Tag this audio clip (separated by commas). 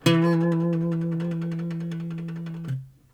Musical instrument, Acoustic guitar, Music, Plucked string instrument, Guitar